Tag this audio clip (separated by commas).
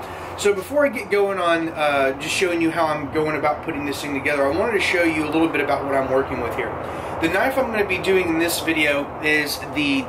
Speech